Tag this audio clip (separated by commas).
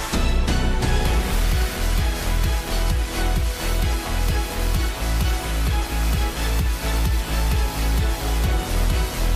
Theme music, Music